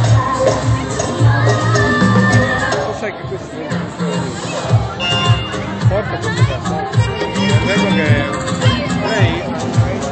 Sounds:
dance music, speech, music

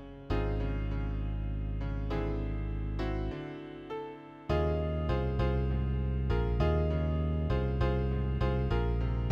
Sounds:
music, happy music

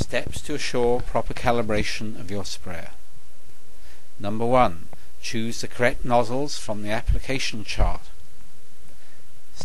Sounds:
speech

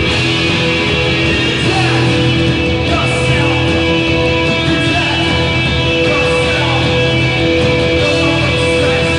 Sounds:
music, roll, pop music, singing

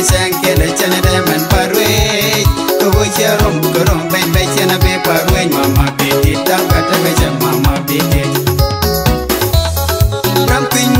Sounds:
music, funk

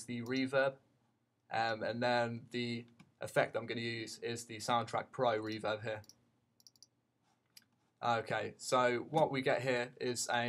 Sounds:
speech

